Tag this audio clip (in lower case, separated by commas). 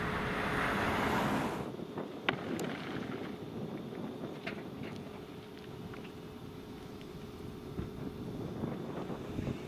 speech, vehicle, fire, outside, rural or natural